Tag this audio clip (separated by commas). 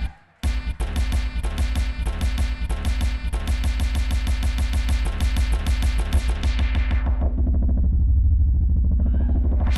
Music